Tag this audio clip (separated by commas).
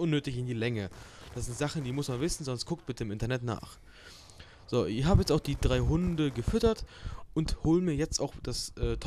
Speech